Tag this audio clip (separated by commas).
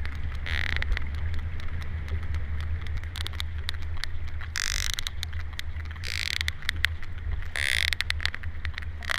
whale calling